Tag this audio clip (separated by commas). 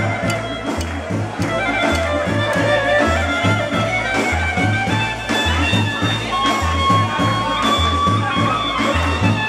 Music, Speech